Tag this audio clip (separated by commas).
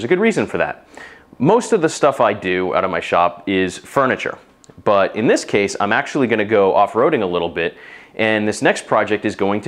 Speech